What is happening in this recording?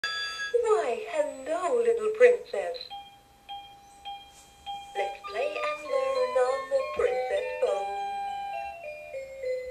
Telephone rings and woman speaks, music plays and she sings